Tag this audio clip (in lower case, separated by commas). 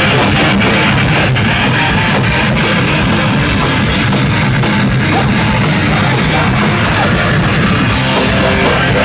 drum kit, punk rock, music, heavy metal, rock music, musical instrument